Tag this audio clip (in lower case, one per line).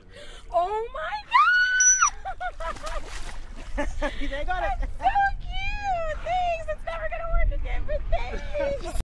speech